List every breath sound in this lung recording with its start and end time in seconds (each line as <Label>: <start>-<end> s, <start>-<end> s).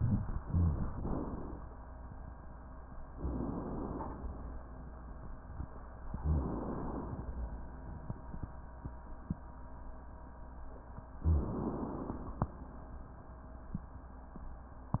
Inhalation: 0.42-1.54 s, 3.11-4.16 s, 6.30-7.35 s, 11.24-12.43 s
Rhonchi: 0.42-0.78 s